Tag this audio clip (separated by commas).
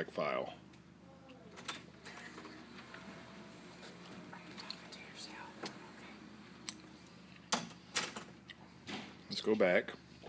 Speech, inside a small room, Music